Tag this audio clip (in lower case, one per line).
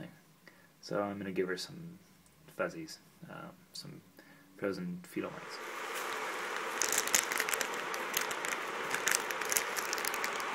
speech